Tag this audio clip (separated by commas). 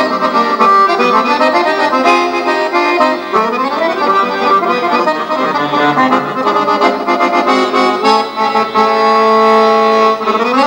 playing accordion, Music, Musical instrument, Accordion